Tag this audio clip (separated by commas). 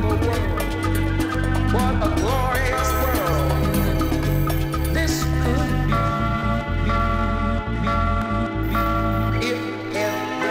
Music, Salsa music